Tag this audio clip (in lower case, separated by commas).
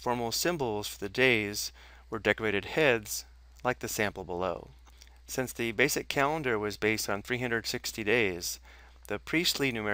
speech